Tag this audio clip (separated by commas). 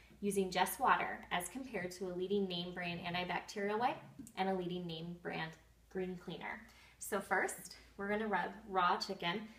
Speech